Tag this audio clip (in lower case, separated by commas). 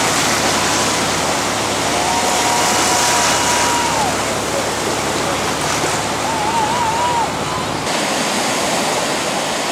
ocean, ocean burbling, waves